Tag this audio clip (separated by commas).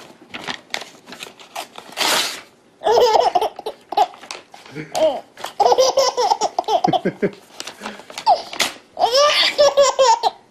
baby laughter